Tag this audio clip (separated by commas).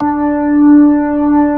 Keyboard (musical), Organ, Musical instrument, Music